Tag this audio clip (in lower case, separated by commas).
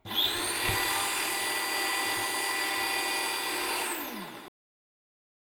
domestic sounds